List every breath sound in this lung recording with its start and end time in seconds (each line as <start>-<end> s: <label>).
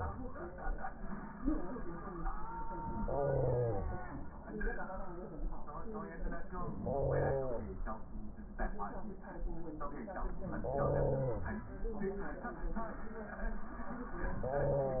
2.96-3.92 s: inhalation
6.77-7.73 s: inhalation
10.49-11.64 s: inhalation
14.36-15.00 s: inhalation